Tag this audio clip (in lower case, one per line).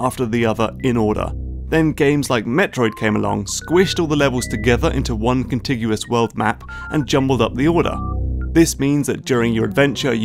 speech
music